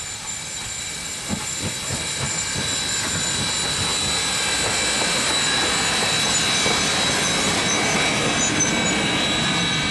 A train steam engine pushes steam out its pipe